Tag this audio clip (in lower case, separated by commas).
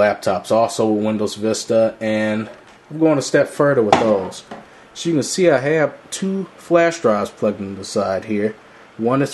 inside a small room, speech